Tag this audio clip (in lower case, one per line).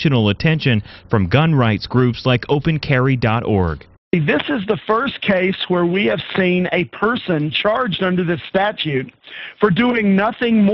speech